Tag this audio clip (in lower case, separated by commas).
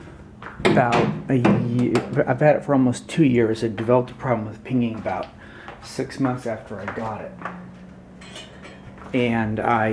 speech